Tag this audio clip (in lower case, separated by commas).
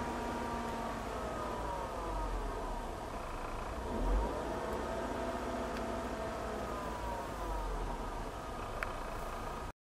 revving, car, vehicle